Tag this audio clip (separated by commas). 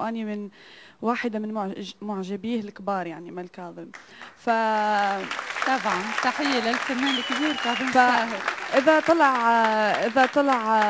Speech